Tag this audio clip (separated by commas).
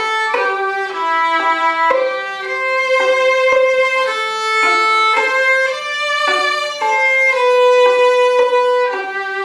Musical instrument, fiddle, Music